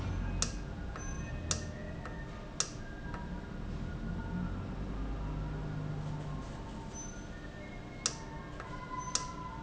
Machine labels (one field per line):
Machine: valve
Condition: normal